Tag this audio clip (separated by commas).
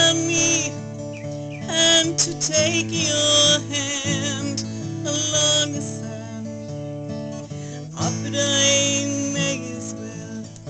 Music